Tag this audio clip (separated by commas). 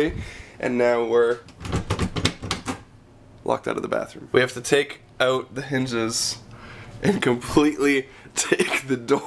Speech